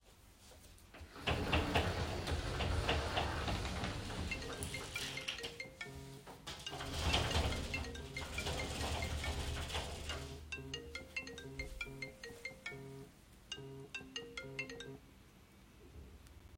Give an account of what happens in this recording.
I was opening the wardrobe when the phone started ringing. Then I closed the wardrobe while the phone was still ringing.